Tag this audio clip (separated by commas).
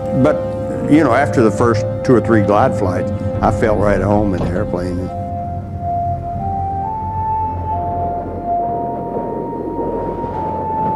Speech, Music